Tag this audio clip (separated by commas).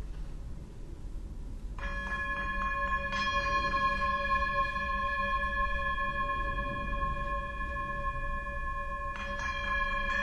Tubular bells